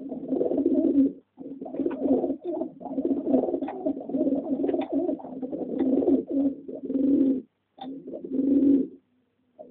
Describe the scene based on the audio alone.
Several pigeons are cooing gently